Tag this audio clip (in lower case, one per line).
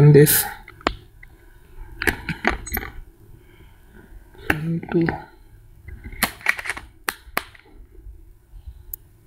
speech